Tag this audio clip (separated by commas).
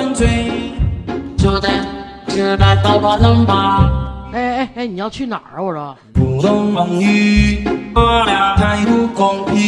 yodelling